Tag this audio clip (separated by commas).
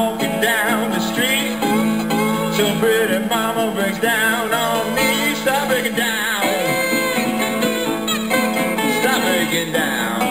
Plucked string instrument, Strum, Music, Banjo, playing banjo, Musical instrument, Guitar, Acoustic guitar